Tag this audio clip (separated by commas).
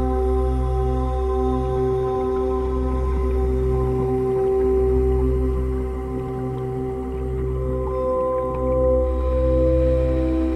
Music, outside, rural or natural